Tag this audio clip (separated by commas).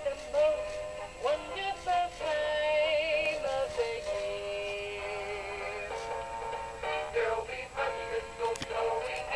Music, Female singing